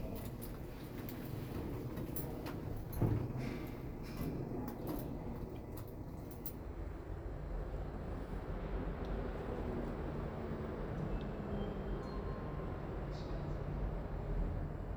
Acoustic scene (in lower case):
elevator